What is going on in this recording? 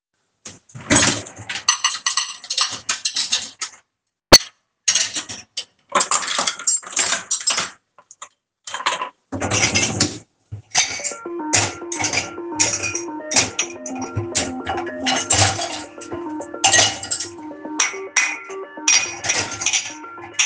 I unloaded dishes and cutlery in the kitchen. While I was still doing that, the phone started ringing in the background. The dish sounds and the phone were audible at the same time.